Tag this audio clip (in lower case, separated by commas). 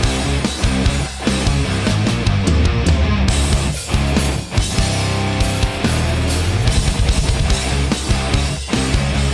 trance music, music, electronic music